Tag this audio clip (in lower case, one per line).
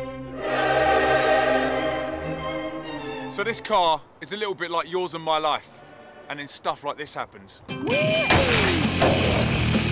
crash